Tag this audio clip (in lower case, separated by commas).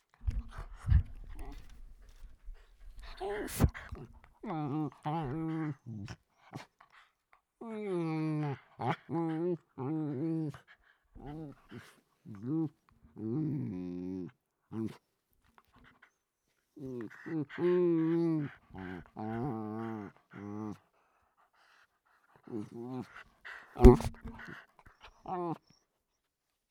pets, dog, animal